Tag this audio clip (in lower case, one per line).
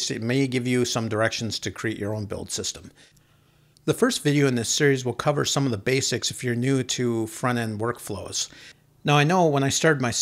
speech